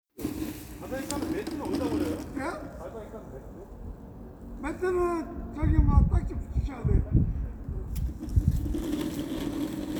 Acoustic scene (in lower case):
residential area